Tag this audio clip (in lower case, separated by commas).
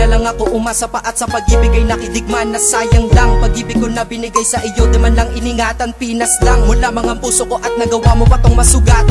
music